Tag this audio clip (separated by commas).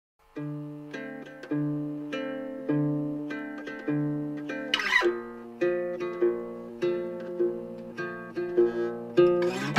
Music, Pizzicato